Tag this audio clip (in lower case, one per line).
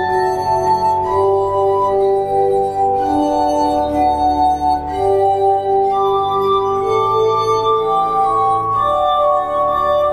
bowed string instrument
violin